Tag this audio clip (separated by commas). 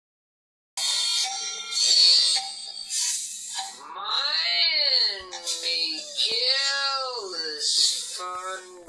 Speech